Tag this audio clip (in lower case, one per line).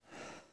breathing
respiratory sounds